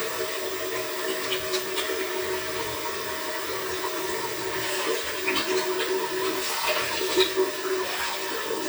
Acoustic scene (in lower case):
restroom